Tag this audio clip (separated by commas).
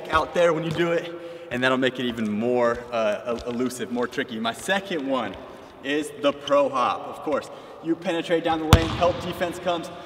Basketball bounce, Speech